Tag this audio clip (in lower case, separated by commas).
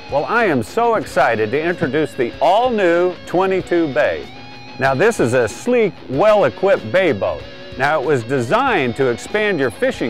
speech, music